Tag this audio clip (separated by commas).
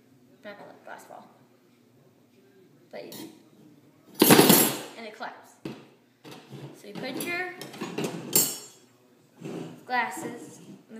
Speech, clink